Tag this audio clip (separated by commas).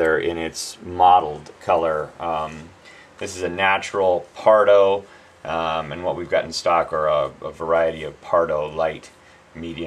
Speech